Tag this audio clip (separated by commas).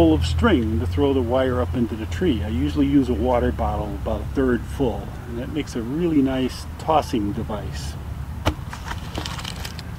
man speaking, Speech